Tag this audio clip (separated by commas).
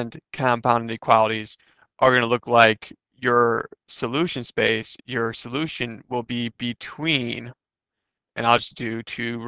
Speech